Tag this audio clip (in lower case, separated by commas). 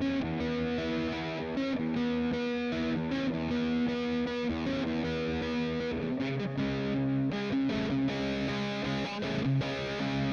musical instrument, guitar, music